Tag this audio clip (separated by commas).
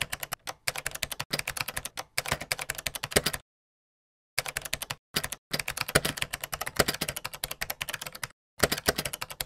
Typing